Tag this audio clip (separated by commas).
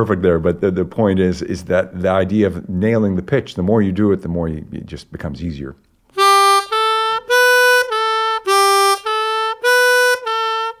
playing harmonica